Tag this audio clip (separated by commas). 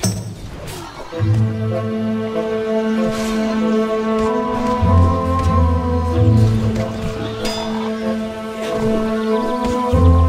Soundtrack music, Music